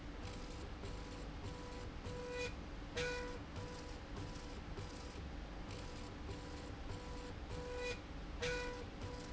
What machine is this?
slide rail